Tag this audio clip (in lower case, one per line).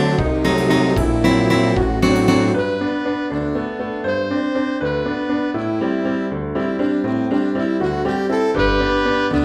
music
soundtrack music